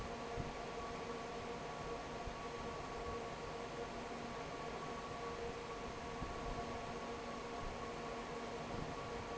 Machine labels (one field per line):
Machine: fan